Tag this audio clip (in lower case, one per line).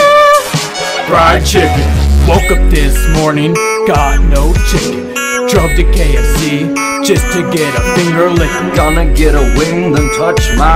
music